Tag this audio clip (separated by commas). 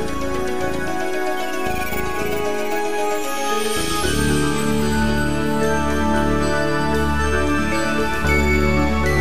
Background music, Music